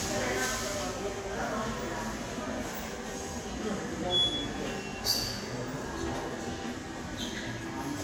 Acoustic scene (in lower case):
subway station